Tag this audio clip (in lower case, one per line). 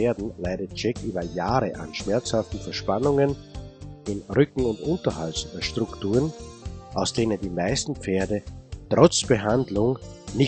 music
speech